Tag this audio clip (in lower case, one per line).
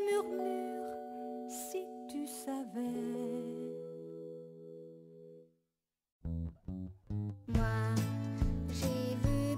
music